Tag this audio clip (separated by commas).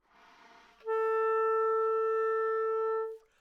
woodwind instrument, Music, Musical instrument